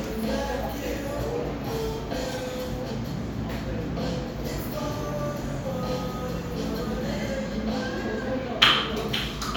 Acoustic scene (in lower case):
cafe